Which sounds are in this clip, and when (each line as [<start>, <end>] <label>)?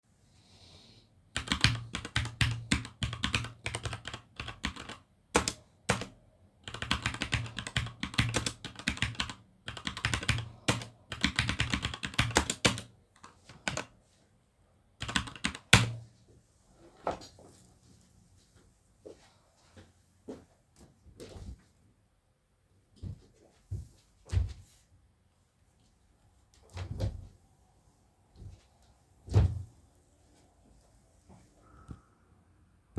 [1.33, 14.39] keyboard typing
[14.88, 16.13] keyboard typing
[18.88, 24.06] footsteps
[24.29, 24.67] wardrobe or drawer
[26.70, 27.31] wardrobe or drawer
[29.26, 29.66] wardrobe or drawer